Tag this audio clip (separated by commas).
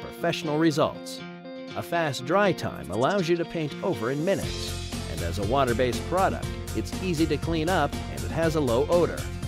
Music, Speech